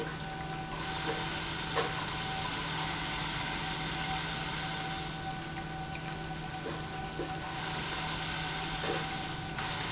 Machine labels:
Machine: pump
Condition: abnormal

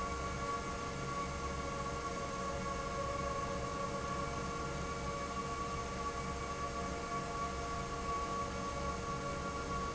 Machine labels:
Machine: fan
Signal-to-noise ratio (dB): -6 dB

